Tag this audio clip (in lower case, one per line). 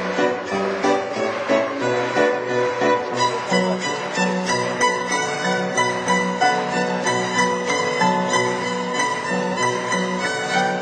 musical instrument
music
violin